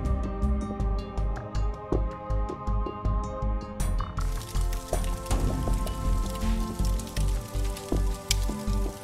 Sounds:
Music

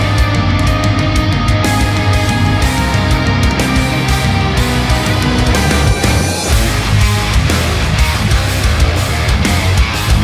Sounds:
Music

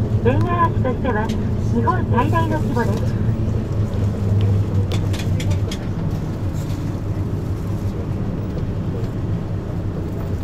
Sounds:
Vehicle, Speech

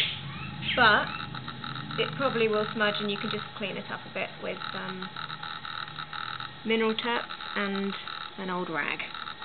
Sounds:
Speech

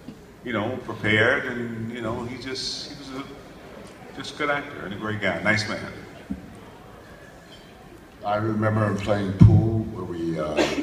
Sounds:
Speech

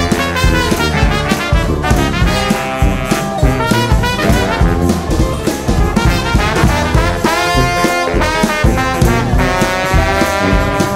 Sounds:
Music

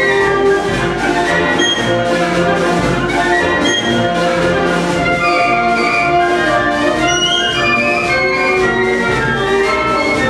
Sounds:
Jazz, Musical instrument, Orchestra, Trumpet, Music, Trombone, Classical music, Brass instrument

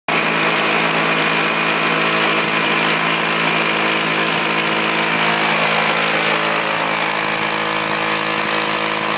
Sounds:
Jackhammer, Power tool

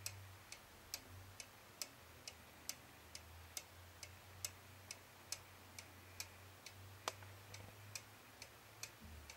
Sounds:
Tick, Tick-tock

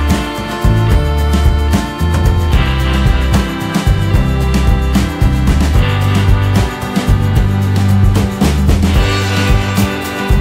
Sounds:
Music

